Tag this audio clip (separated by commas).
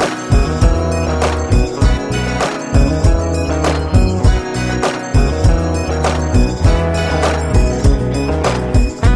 Music